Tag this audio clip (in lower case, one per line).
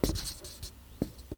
home sounds
writing